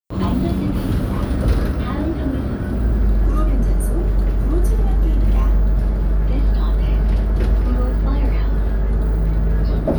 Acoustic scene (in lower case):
bus